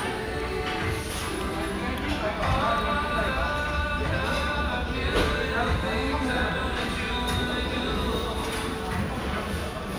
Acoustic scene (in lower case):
restaurant